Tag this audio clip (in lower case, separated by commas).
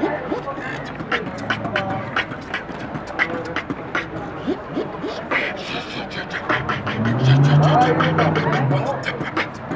beat boxing